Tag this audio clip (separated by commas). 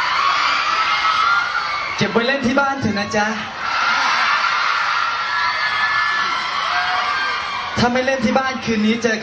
Speech